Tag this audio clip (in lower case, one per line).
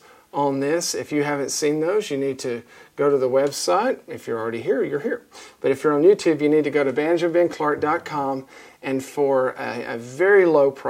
speech